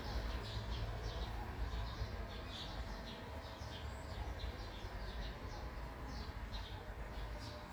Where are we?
in a park